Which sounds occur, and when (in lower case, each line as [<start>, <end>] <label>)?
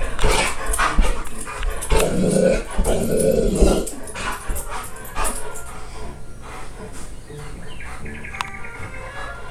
[0.00, 9.50] music
[0.00, 9.50] television
[0.15, 0.23] generic impact sounds
[0.17, 0.57] bark
[0.54, 1.24] pant (dog)
[0.69, 0.76] generic impact sounds
[1.21, 1.28] generic impact sounds
[1.41, 1.87] pant (dog)
[1.57, 1.65] generic impact sounds
[1.87, 2.61] growling
[1.93, 1.99] generic impact sounds
[2.76, 3.82] growling
[3.15, 3.21] generic impact sounds
[3.82, 3.88] generic impact sounds
[4.11, 4.85] pant (dog)
[4.46, 4.52] tap
[4.83, 5.34] generic impact sounds
[5.08, 5.39] pant (dog)
[5.48, 5.61] generic impact sounds
[5.66, 6.09] pant (dog)
[6.41, 7.05] pant (dog)
[7.24, 9.09] bird call
[8.35, 8.44] generic impact sounds
[8.67, 9.29] pant (dog)